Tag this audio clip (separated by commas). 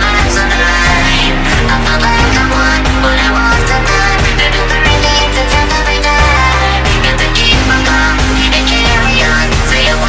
Music, Soundtrack music